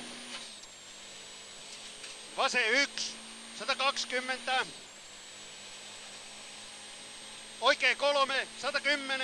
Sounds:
speech

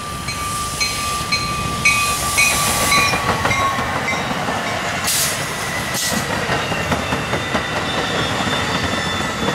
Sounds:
train
railroad car
vehicle
rail transport
outside, rural or natural

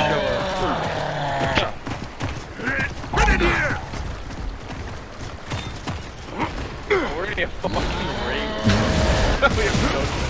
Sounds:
speech

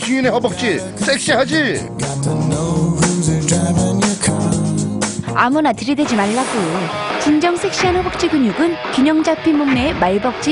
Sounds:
speech
music

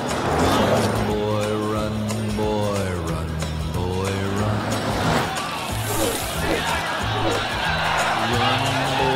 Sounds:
music
speech

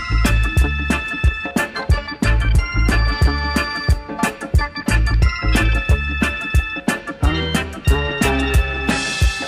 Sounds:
music

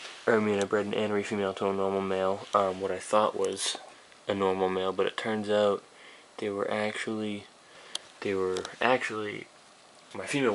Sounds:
speech

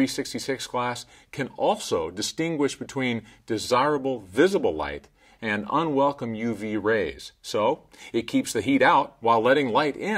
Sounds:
speech

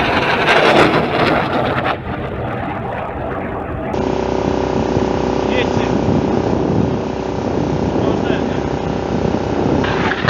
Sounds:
speech
outside, rural or natural

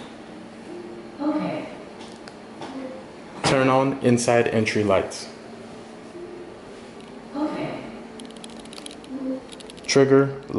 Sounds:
speech

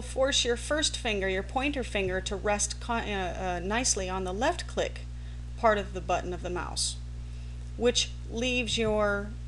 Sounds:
speech

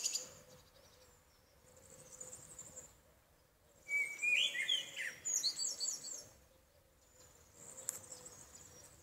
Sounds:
wood thrush calling

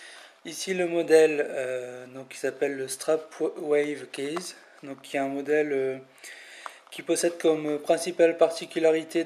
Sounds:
speech

